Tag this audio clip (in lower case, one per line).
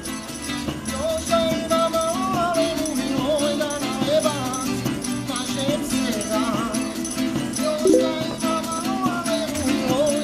music